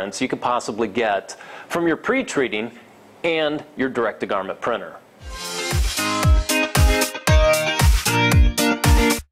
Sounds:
music
speech

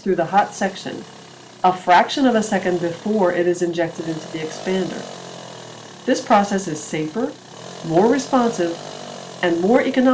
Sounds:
engine
outside, urban or man-made
speech

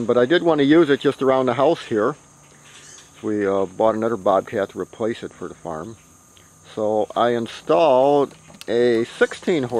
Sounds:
speech

